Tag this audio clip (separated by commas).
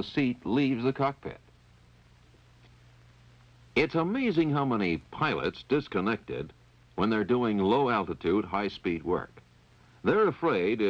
Speech